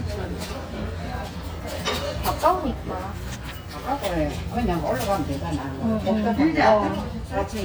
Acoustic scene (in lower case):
restaurant